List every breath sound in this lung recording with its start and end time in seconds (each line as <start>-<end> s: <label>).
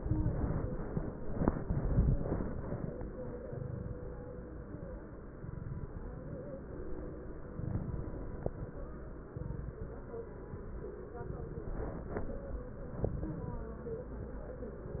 0.02-0.74 s: inhalation
0.02-0.74 s: crackles
3.38-4.14 s: inhalation
3.38-4.14 s: crackles
5.28-6.04 s: inhalation
5.28-6.04 s: crackles
7.50-8.11 s: inhalation
7.50-8.11 s: crackles
9.29-9.90 s: inhalation
9.29-9.90 s: crackles
11.15-11.76 s: inhalation
11.15-11.76 s: crackles
13.00-13.60 s: inhalation
13.00-13.60 s: crackles